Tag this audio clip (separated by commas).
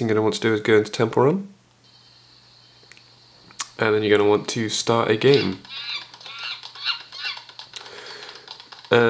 Speech